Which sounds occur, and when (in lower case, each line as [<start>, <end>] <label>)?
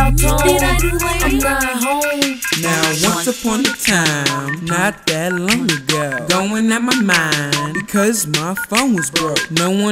[0.00, 2.40] rapping
[0.00, 9.91] music
[2.55, 4.94] rapping
[5.08, 9.91] rapping